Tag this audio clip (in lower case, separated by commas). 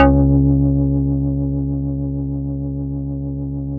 keyboard (musical), music, musical instrument, organ